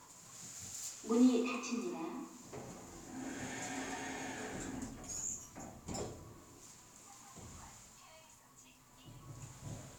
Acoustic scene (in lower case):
elevator